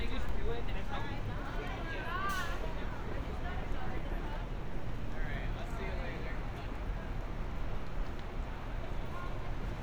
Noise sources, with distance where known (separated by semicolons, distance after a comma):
person or small group talking, near